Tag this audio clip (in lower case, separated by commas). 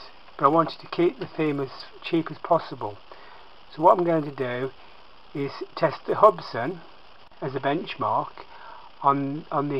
speech